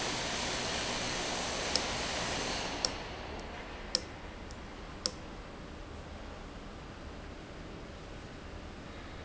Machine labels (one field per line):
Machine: valve